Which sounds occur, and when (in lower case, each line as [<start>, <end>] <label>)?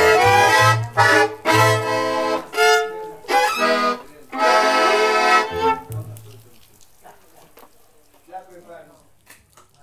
[0.00, 6.43] music
[0.00, 9.82] mechanisms
[0.79, 0.86] tick
[2.99, 3.05] tick
[4.03, 4.30] male speech
[5.87, 5.97] tick
[5.94, 6.79] male speech
[6.78, 6.86] tick
[6.99, 7.69] male speech
[7.57, 7.64] tick
[8.13, 8.19] tick
[8.17, 9.10] male speech
[9.26, 9.35] tick
[9.55, 9.65] tick
[9.77, 9.82] tick